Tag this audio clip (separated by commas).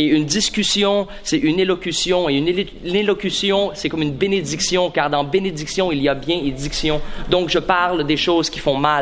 Speech